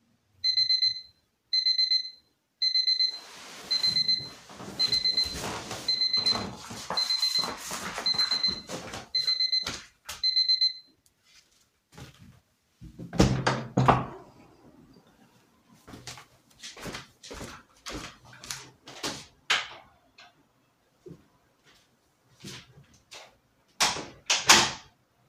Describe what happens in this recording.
Alarm rang. I sat up, put on my slippers and turned off the alarm. I closed the window, walked to the batroom door, opened it, walked in and closed the door.